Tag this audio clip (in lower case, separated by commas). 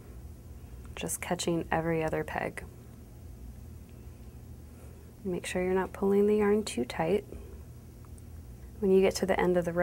speech, inside a small room